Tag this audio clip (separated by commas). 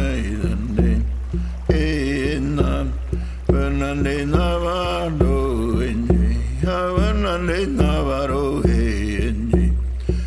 Stream, Music